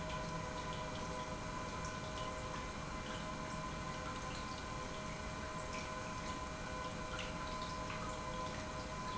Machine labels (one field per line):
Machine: pump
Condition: normal